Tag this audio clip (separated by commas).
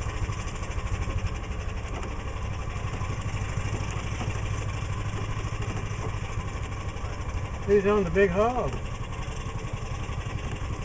Vehicle, Speech